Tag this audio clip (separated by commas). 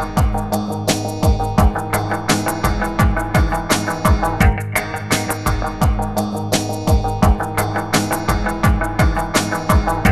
Music